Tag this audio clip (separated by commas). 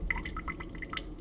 Pour, Liquid, home sounds, dribble, Water tap